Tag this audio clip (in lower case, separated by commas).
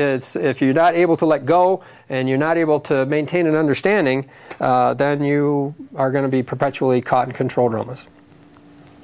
speech